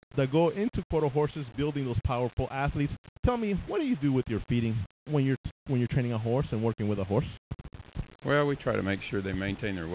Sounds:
Speech

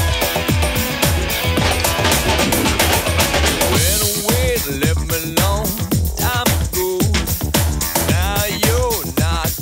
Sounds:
Disco, Music, Singing

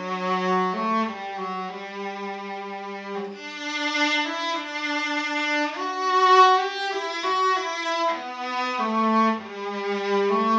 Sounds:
Musical instrument, Music, playing cello, Cello

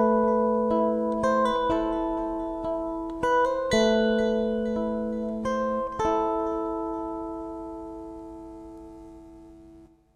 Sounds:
Musical instrument, Plucked string instrument, Music, Guitar

